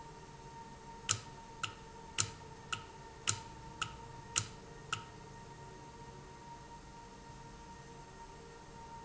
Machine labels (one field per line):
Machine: valve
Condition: normal